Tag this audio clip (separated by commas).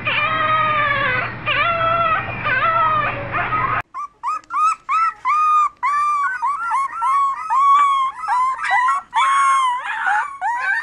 dog whimpering